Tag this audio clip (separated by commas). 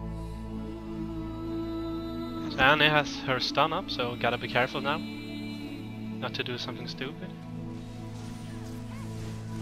Music, Speech